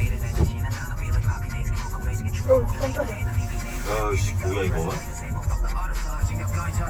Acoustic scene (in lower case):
car